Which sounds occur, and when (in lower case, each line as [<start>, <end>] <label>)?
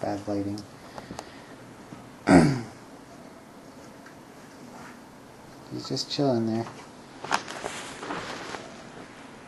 [0.00, 0.63] male speech
[0.00, 9.45] mechanisms
[0.51, 0.68] generic impact sounds
[0.81, 1.21] generic impact sounds
[2.22, 2.77] throat clearing
[3.98, 4.15] generic impact sounds
[4.66, 4.99] generic impact sounds
[5.67, 6.79] male speech
[6.55, 6.92] generic impact sounds
[7.21, 8.62] generic impact sounds